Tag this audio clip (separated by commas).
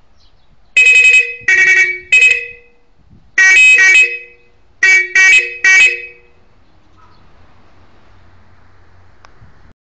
outside, rural or natural, Vehicle horn